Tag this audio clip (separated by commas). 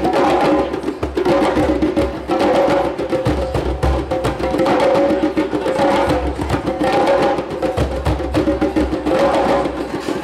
playing djembe